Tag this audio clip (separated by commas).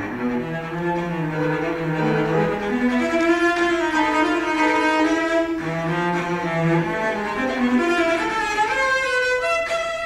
Musical instrument, Music, playing cello, Cello